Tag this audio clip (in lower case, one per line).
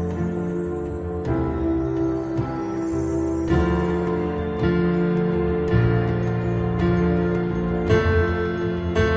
music
sad music